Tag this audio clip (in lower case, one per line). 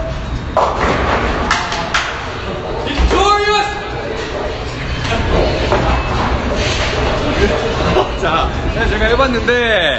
bowling impact